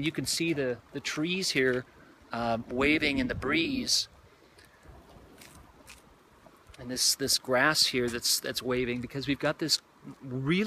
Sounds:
speech

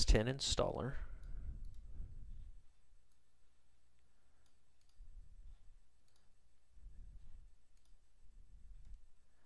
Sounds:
speech

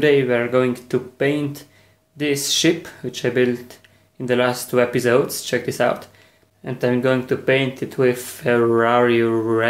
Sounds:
speech

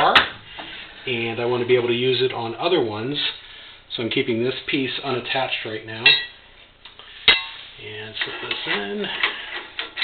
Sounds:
speech

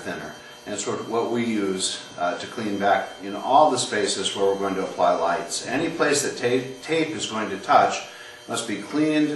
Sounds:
speech

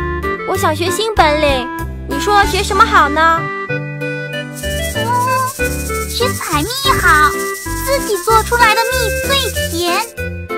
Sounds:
music for children
speech
music

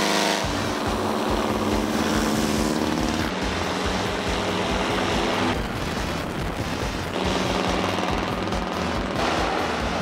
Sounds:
wind noise (microphone)
wind

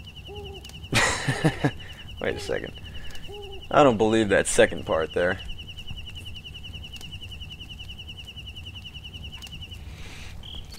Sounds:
speech

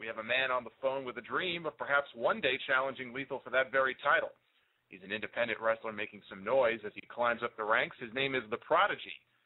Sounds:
speech

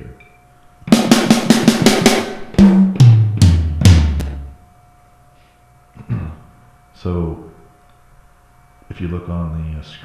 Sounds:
bass drum
inside a small room
music
musical instrument
speech
drum kit
drum

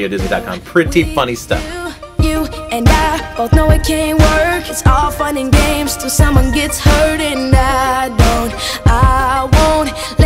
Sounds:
music
speech

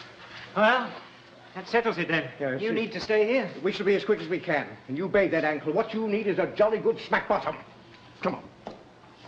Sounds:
speech

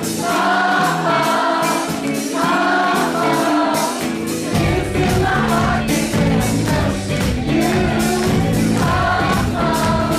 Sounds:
music

